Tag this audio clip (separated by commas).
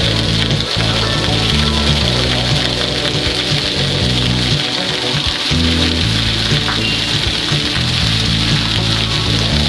Rain on surface, Music